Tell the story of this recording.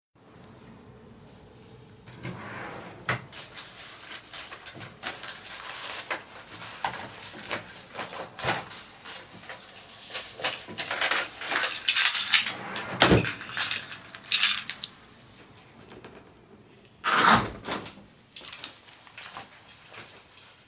I open the drawer, search through the paper and other stuff stored inside for my keys. I grab my keys and close the drawer. I walk towards the window and close it.